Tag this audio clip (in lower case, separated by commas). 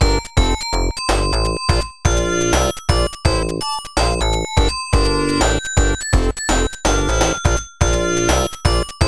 music